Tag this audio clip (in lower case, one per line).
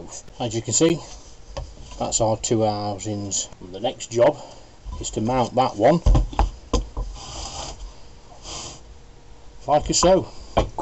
speech